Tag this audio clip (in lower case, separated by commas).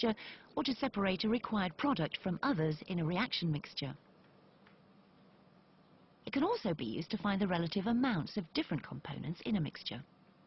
speech